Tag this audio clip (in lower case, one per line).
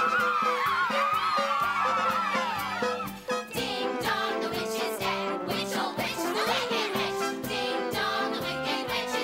music